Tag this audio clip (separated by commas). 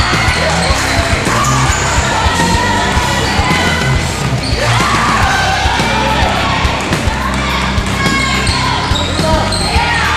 Basketball bounce